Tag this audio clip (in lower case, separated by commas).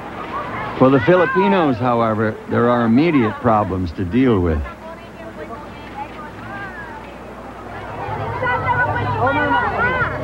speech